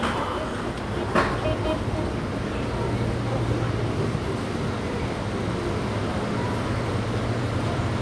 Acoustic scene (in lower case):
subway station